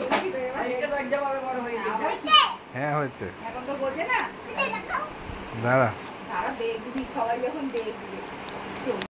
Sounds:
kid speaking, Speech, inside a small room

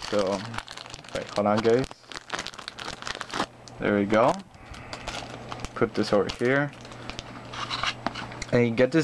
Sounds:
Speech, crinkling

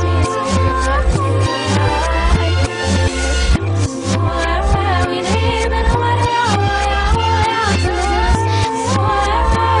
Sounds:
Pop music, Music

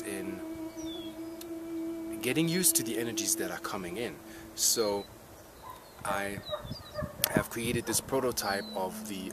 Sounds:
outside, rural or natural, Speech

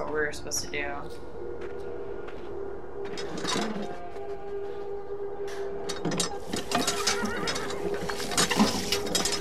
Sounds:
Speech, Music, outside, rural or natural

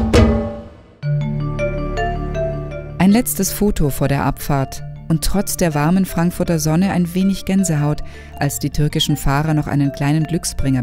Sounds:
Music, Speech

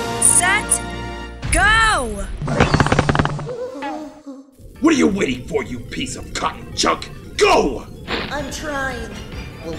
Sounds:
Music, Speech

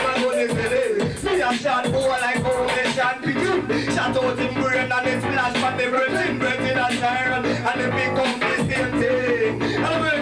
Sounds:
Music

